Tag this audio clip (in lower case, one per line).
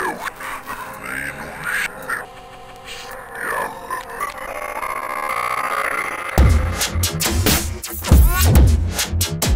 speech
music